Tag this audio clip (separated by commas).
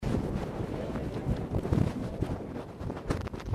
Wind